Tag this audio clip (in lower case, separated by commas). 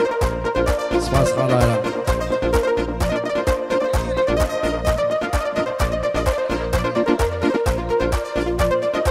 speech, music